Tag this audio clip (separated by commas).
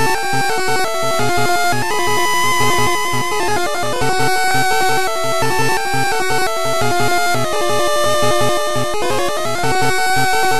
Video game music